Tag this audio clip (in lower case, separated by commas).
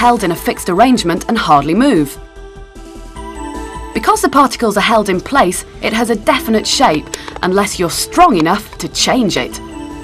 speech, music